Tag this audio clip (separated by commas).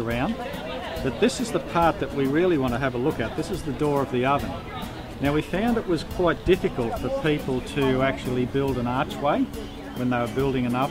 Speech, Music